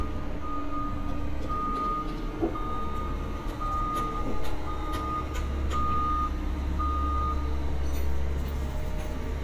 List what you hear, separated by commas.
reverse beeper